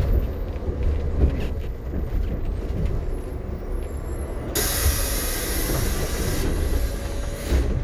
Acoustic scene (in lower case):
bus